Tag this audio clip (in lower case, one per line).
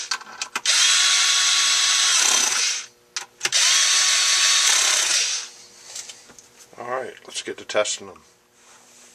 tools
power tool